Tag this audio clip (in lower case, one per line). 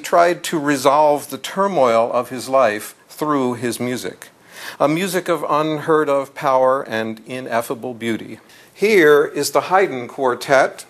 speech